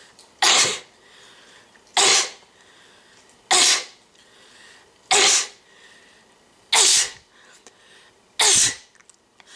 A person sneezes several times in rapid succession